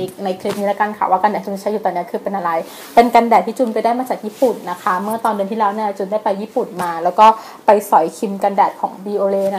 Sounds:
Speech

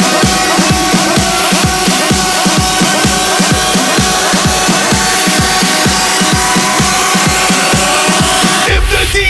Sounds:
Music

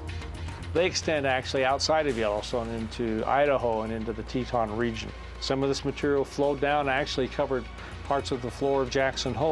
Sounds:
Speech, Music

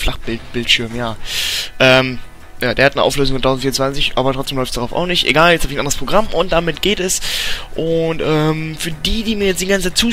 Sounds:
Speech

